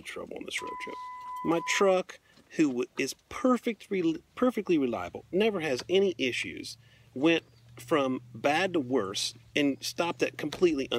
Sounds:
Speech

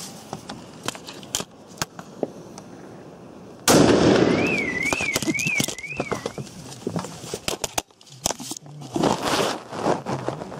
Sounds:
lighting firecrackers

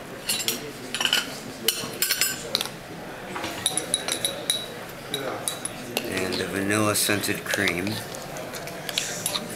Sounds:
Speech

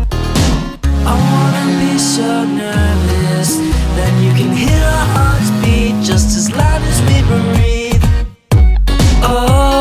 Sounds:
Music

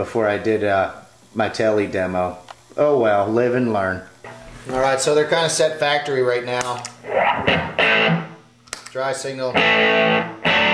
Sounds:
Guitar, Speech, Effects unit, Music, Musical instrument

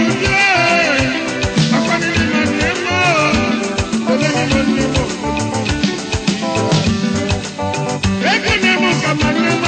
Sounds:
Music, Music of Africa

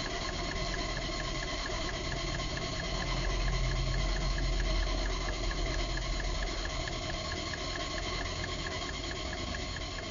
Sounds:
Engine

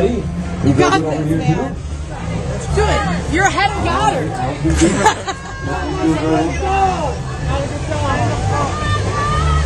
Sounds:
speech babble, Music, Speech

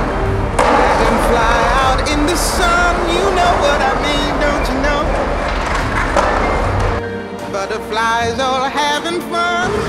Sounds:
Skateboard

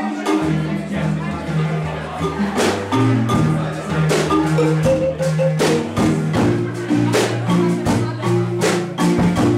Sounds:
Speech, Marimba, Music

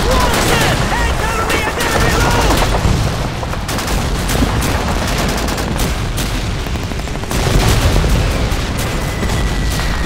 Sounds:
Speech, Boom

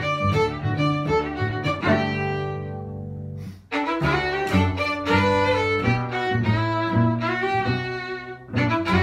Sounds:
Bowed string instrument, Cello, fiddle

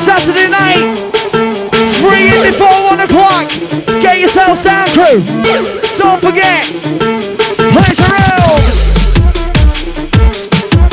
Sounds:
Music, House music

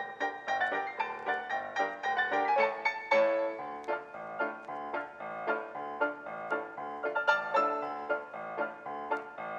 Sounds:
Music

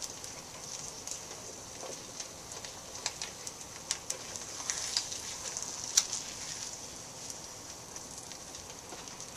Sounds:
Frying (food), Sizzle

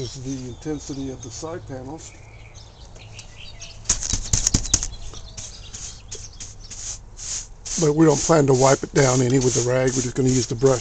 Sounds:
inside a small room, Speech

